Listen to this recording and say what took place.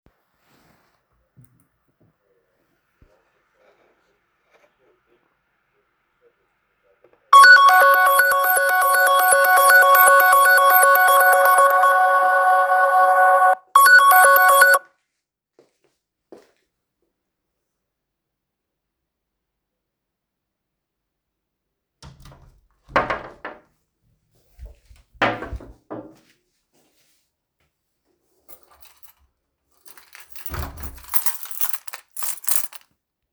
My phone rang, I open and closed wardobe I took my keys